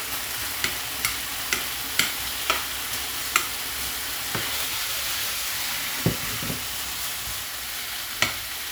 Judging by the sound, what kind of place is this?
kitchen